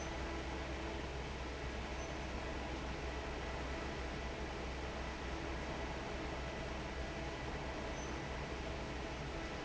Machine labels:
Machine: fan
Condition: normal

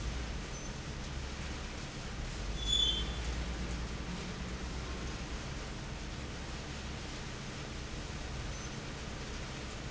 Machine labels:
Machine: fan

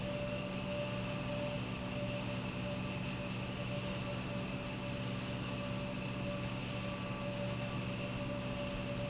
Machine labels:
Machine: pump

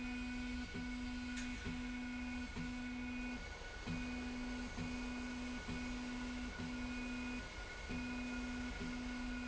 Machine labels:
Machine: slide rail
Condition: normal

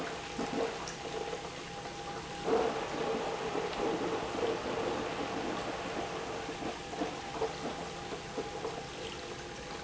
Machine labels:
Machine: pump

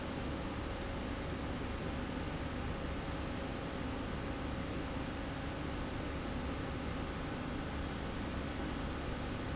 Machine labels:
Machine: slide rail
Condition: normal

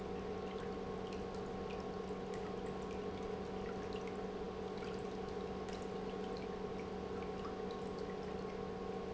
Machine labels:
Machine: pump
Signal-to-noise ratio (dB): 6 dB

